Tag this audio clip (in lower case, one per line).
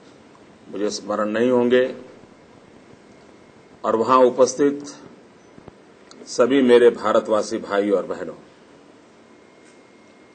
male speech
speech
narration